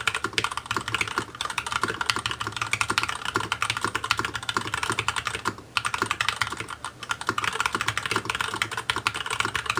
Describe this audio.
Very fast typing on a keyboard